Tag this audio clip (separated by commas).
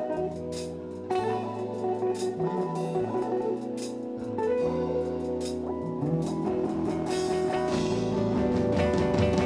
Strum, Plucked string instrument, Acoustic guitar, Musical instrument, Guitar, Music